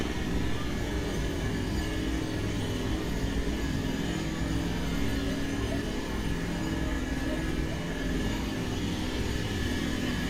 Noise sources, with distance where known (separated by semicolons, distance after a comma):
jackhammer, near; unidentified human voice